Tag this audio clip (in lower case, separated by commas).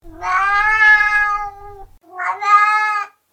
domestic animals, cat, meow, animal